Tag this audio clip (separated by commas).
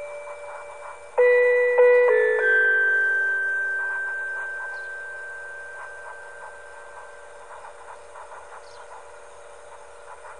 Glockenspiel, Music